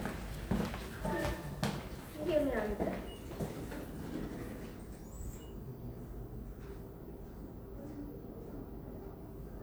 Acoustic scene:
elevator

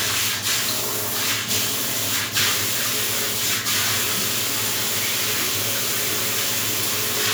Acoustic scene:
restroom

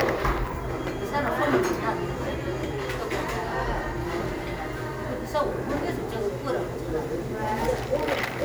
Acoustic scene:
cafe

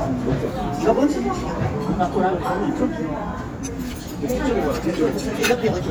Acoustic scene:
restaurant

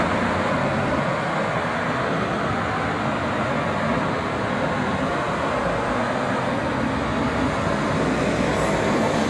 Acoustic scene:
street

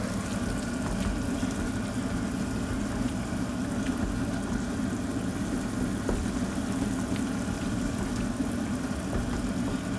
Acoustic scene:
kitchen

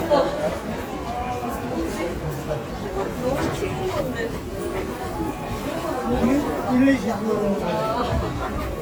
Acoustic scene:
subway station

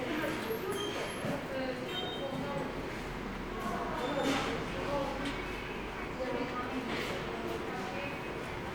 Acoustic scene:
subway station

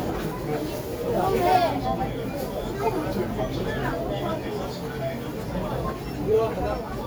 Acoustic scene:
crowded indoor space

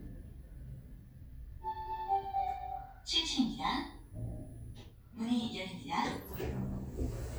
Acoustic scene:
elevator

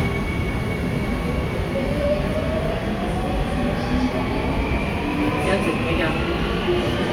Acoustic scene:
subway station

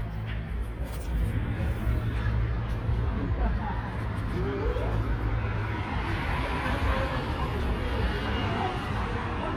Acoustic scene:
street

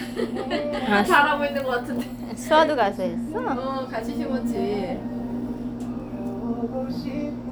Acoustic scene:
cafe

